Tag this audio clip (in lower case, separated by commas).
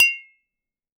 clink, glass